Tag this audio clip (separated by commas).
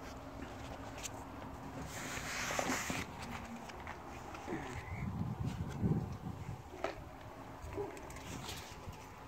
ferret dooking